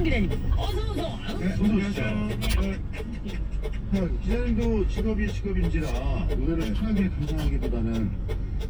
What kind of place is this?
car